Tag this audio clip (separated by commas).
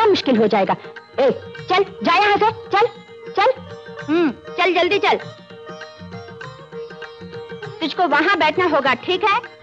Carnatic music, Music, Speech